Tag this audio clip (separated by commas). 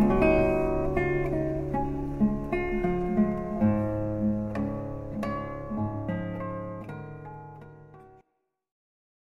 Acoustic guitar, Music, Strum, Musical instrument, Plucked string instrument, Guitar